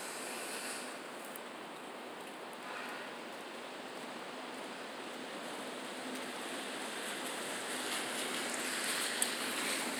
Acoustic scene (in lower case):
residential area